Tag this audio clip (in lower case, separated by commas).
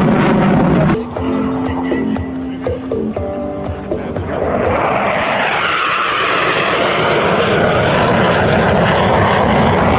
airplane flyby